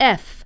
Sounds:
speech, woman speaking, human voice

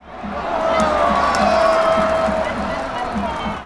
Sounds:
human group actions, crowd

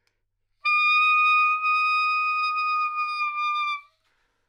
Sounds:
wind instrument, musical instrument, music

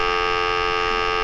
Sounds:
alarm, telephone

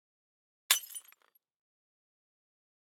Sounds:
glass, shatter

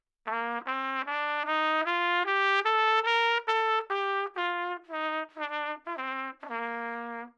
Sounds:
musical instrument, trumpet, music, brass instrument

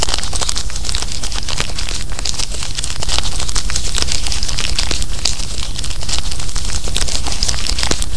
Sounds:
crumpling

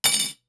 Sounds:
silverware, home sounds, dishes, pots and pans

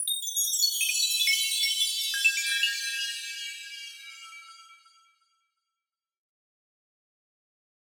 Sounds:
bell, chime

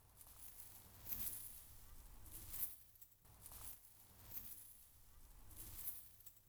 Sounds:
wind

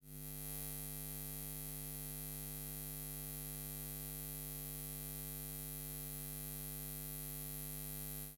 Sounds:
buzz, insect, animal, wild animals

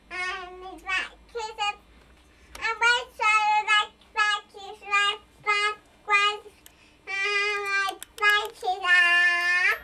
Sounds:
human voice, speech

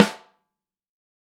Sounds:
snare drum, music, percussion, drum, musical instrument

